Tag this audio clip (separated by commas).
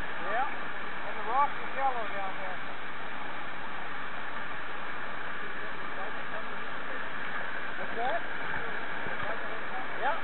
Wind